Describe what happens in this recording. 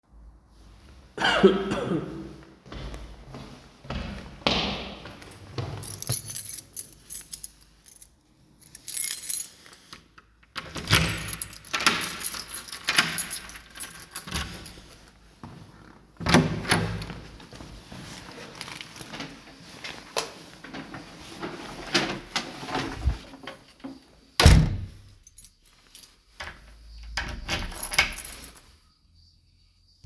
I jingled a keychain near the entrance, opened and closed the door, and then walked a few steps in the hallway. The events occur sequentially in a realistic entry scene.